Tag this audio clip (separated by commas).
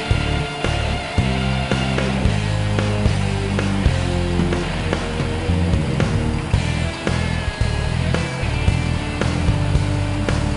Music